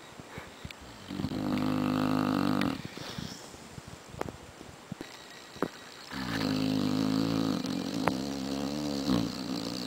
Quick snore, then a long drawn out snore